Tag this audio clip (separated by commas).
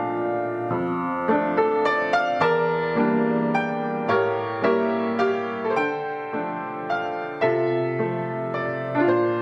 Music